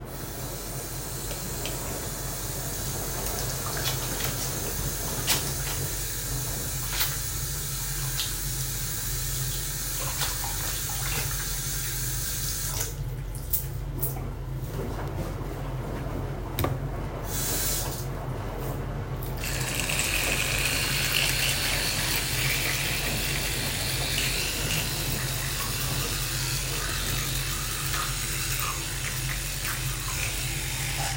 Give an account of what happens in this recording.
I turned the faucet on, the washing machine was on all the time, I washed my hand, turned the faucet off, shaked the water off from my hands and dry them with a towel, I switched the tooth brush on and brushed my teeth.